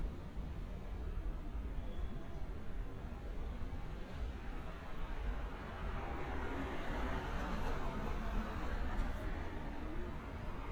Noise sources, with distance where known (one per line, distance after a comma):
medium-sounding engine, near